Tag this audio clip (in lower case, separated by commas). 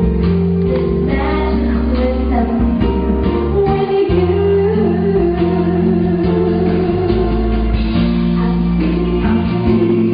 vocal music, music